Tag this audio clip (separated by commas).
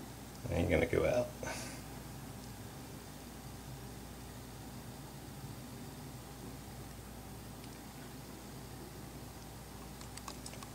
Speech